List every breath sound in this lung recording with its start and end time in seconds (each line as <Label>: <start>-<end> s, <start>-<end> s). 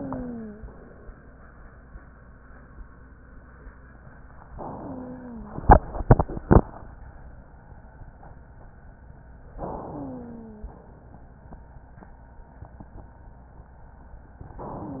Inhalation: 4.55-5.62 s, 9.56-10.63 s
Wheeze: 0.00-0.69 s, 4.55-5.62 s, 9.90-10.97 s